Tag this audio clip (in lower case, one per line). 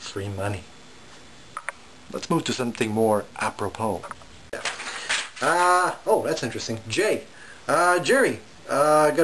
speech